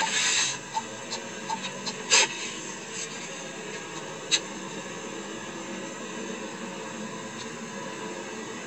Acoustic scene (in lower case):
car